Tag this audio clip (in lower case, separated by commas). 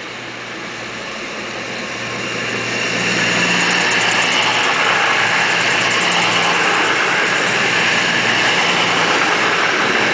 railroad car, rail transport, train, vehicle